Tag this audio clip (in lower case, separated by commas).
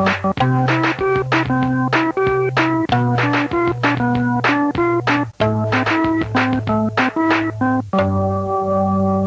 playing piano, electric piano, keyboard (musical), piano